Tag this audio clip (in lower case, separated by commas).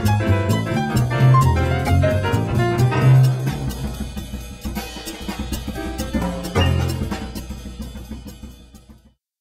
cello, bowed string instrument, pizzicato